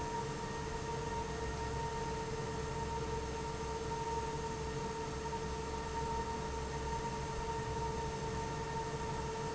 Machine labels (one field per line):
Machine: fan